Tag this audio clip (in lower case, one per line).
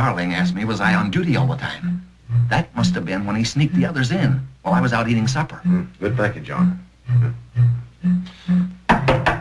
sound effect